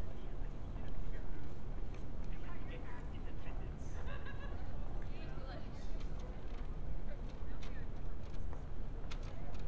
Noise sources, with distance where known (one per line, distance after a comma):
person or small group talking, far